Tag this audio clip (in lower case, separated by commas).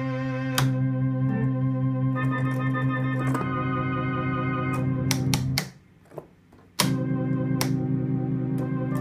organ, electronic organ, keyboard (musical), piano, electric piano